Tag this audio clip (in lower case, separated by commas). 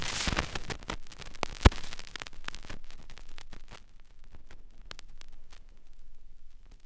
crackle